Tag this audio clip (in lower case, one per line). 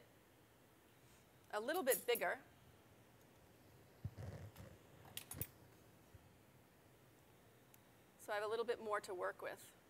speech